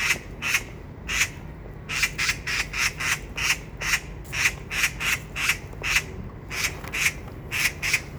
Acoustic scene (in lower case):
park